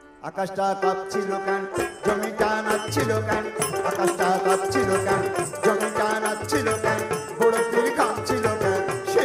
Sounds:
Singing, Music

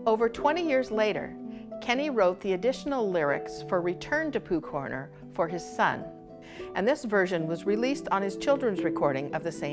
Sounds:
Music, Speech

